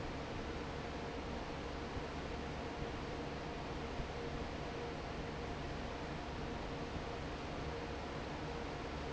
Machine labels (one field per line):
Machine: fan